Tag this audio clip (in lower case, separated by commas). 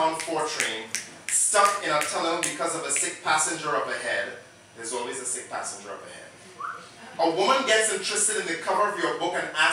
speech